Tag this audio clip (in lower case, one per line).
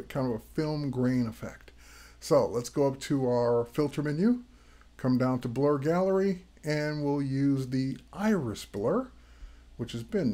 speech